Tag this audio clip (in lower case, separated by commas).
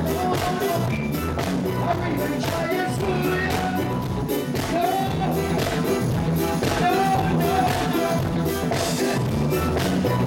music